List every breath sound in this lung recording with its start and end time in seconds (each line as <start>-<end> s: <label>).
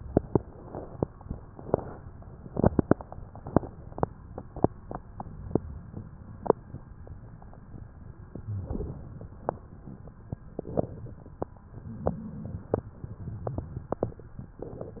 8.30-9.33 s: inhalation
8.43-8.93 s: wheeze
11.69-12.80 s: inhalation